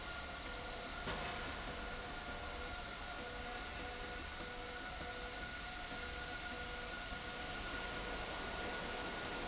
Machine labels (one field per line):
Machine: slide rail